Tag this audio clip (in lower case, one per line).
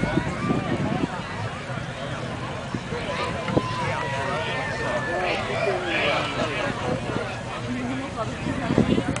speech